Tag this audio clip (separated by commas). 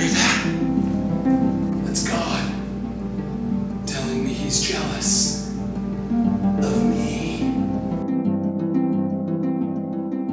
Pizzicato